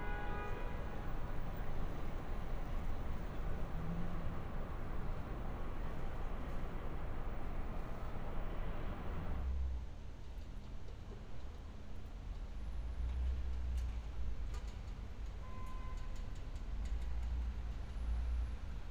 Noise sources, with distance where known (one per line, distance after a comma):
car horn, far